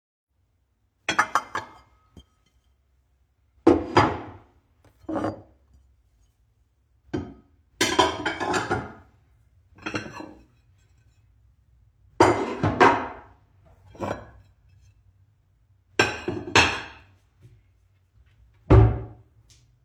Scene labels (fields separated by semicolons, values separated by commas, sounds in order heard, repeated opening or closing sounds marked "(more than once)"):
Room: kitchen; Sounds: cutlery and dishes, wardrobe or drawer